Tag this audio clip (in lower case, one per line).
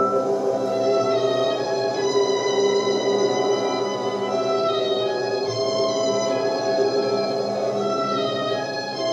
sad music
music